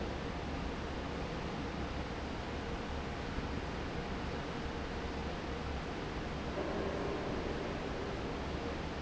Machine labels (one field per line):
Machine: fan